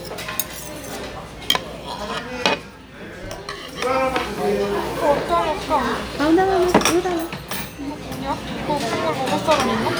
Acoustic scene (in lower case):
restaurant